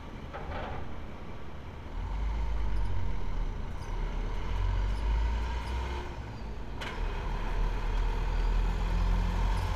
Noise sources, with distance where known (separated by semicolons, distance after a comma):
medium-sounding engine, near